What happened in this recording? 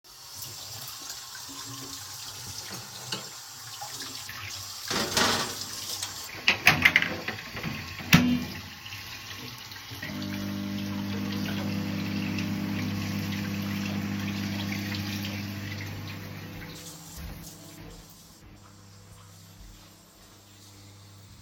I was washing dishes, opened the microwave and put a dish inside it and closed it. I started the microwave and walked to the bedroom.